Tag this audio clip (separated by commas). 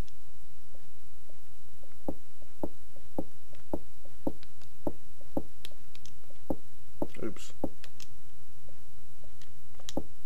Speech, Tick-tock